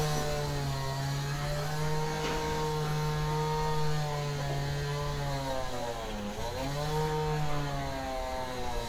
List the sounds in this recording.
small or medium rotating saw